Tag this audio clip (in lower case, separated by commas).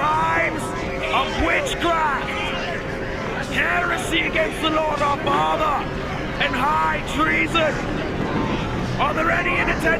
speech